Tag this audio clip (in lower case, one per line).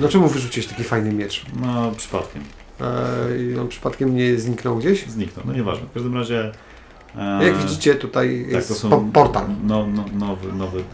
speech